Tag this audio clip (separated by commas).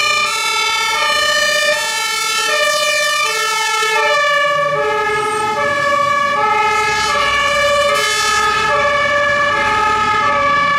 fire truck siren